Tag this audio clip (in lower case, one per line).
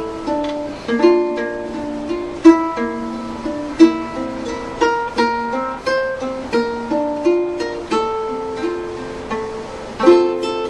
music
ukulele